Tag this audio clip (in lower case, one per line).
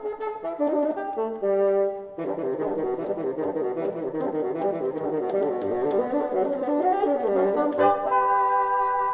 playing bassoon